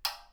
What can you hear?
plastic switch